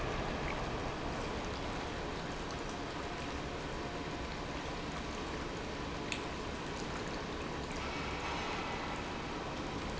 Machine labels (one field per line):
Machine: pump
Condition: normal